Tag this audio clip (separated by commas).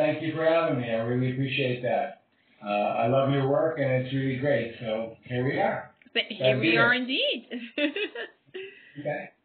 inside a small room, Speech